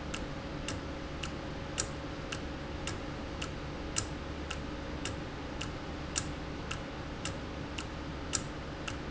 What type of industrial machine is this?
valve